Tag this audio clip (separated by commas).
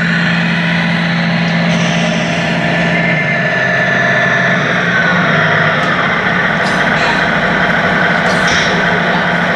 Speech, Vehicle, Truck